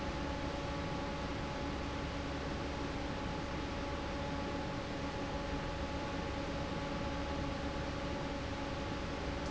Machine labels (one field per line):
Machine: fan